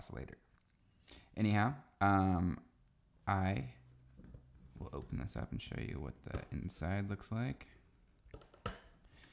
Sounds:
speech

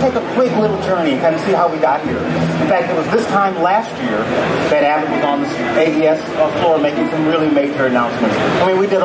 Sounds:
speech

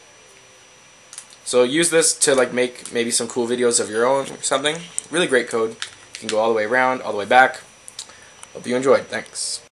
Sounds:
single-lens reflex camera
speech

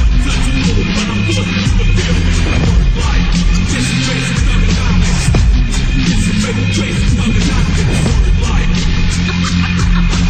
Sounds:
music

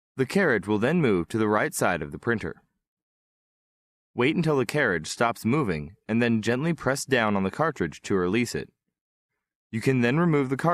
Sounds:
speech

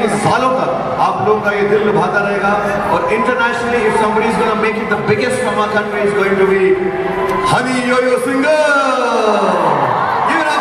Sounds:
speech

